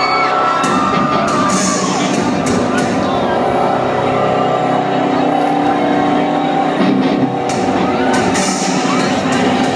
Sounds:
Music

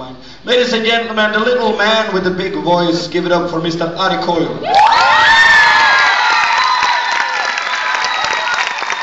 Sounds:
Speech

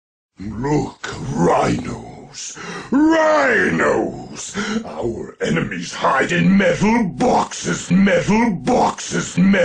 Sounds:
Speech

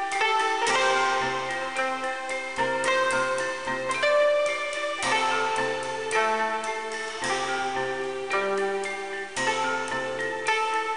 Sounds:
Soundtrack music

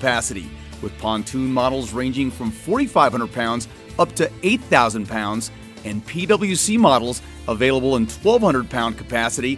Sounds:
Speech, Music

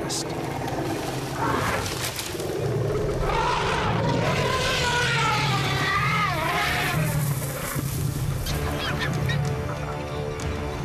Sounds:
elephant trumpeting

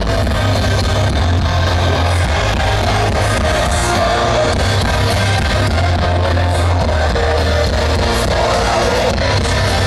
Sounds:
Music

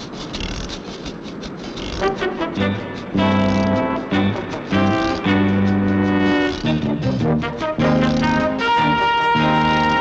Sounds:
Music

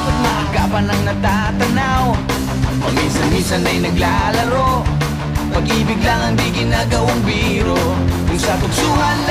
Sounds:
Music

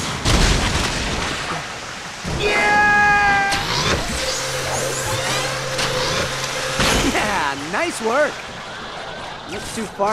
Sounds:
Speech

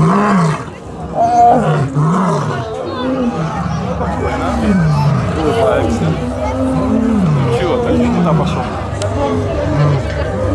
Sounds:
lions roaring

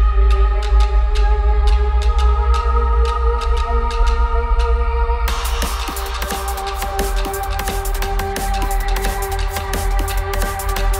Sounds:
Music, Drum and bass

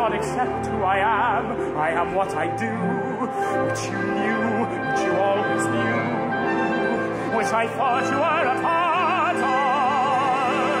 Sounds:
Orchestra, Singing, Opera

